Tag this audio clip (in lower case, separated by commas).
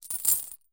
coin (dropping), domestic sounds